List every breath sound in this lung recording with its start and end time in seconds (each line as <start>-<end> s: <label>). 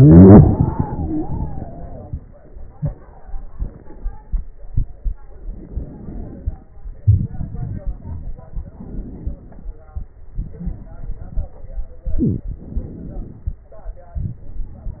5.22-6.74 s: inhalation
7.04-8.67 s: exhalation
7.04-8.67 s: crackles
8.71-10.18 s: inhalation
10.36-12.02 s: exhalation
10.36-12.02 s: crackles
12.12-13.58 s: inhalation
14.15-15.00 s: exhalation
14.15-15.00 s: crackles